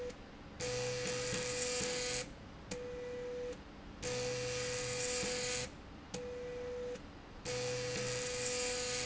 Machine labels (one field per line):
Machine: slide rail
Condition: abnormal